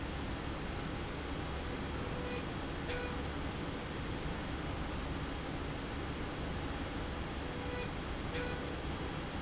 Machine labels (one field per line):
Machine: slide rail